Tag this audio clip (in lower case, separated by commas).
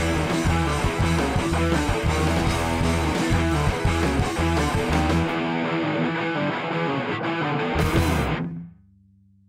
music